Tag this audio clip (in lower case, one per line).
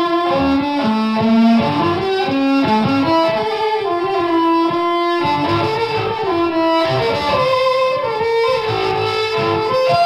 fiddle
music
musical instrument